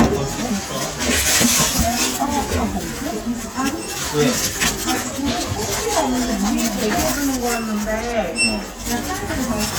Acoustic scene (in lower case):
crowded indoor space